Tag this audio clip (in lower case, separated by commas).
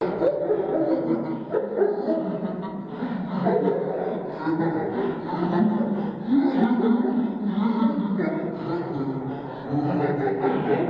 human voice, laughter